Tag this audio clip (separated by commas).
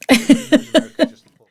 Giggle, Human voice, Laughter